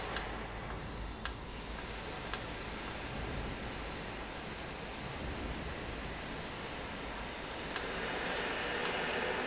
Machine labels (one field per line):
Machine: valve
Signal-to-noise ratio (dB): -6 dB